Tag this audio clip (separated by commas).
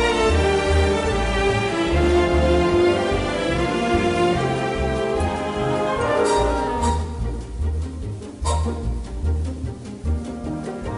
Music